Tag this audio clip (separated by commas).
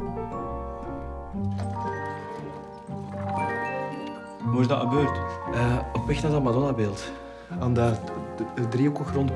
Music, Speech